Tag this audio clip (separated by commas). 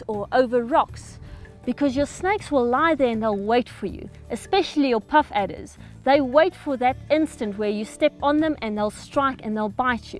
Speech, Music